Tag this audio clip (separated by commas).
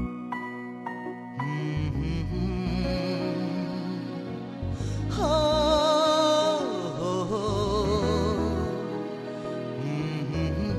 Music, Sad music